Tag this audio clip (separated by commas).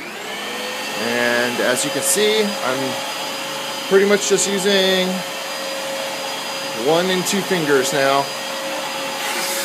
Vacuum cleaner